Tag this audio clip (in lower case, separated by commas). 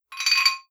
domestic sounds, dishes, pots and pans